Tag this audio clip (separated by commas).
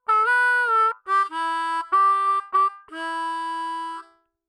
Musical instrument, Music, Harmonica